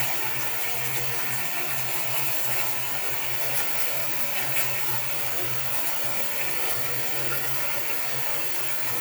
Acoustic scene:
restroom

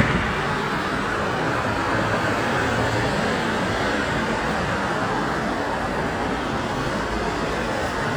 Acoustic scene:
street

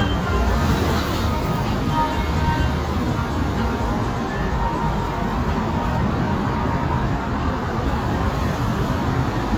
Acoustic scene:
street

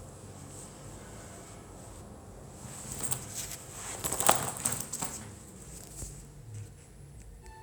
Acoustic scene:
elevator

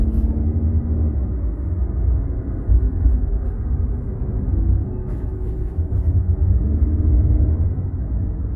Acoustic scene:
car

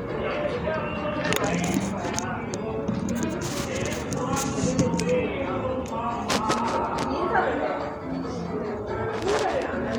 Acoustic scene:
cafe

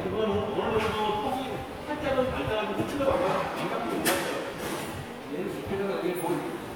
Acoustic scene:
subway station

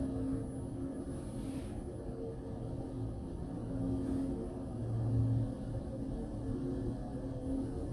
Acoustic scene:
elevator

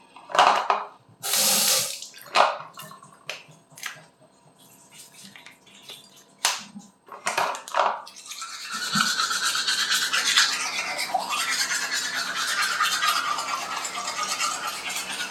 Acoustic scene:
restroom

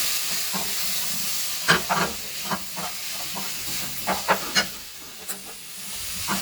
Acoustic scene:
kitchen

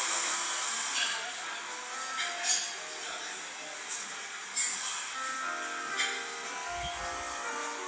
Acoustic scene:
cafe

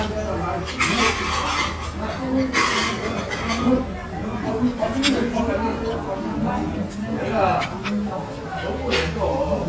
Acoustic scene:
restaurant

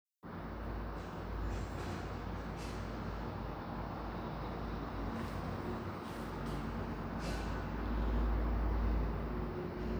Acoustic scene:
elevator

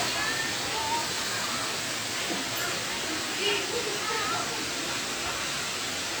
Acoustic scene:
park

